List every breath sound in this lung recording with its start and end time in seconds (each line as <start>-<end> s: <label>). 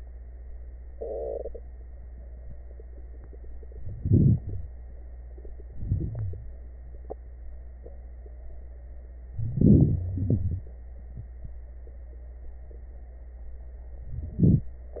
4.01-4.68 s: inhalation
4.40-4.68 s: wheeze
5.73-6.50 s: inhalation
5.73-6.50 s: wheeze
9.30-10.07 s: inhalation
9.30-10.07 s: crackles
10.05-10.71 s: exhalation
10.05-10.71 s: wheeze
14.05-14.71 s: inhalation
14.05-14.71 s: crackles